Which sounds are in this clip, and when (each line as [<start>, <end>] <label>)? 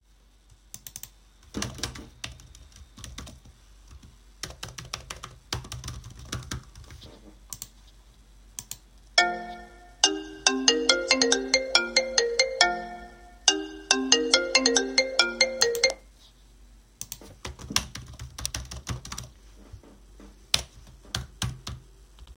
[0.25, 3.48] keyboard typing
[4.08, 7.99] keyboard typing
[8.94, 16.08] phone ringing
[16.95, 19.35] keyboard typing
[20.39, 22.00] keyboard typing